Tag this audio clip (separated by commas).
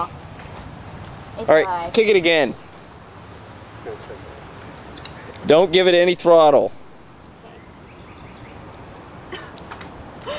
outside, rural or natural, Motorcycle, Vehicle, Speech